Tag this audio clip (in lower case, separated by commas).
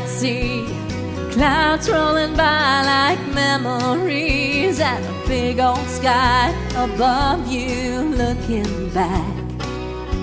music, female singing